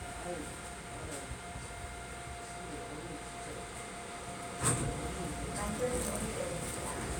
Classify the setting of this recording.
subway train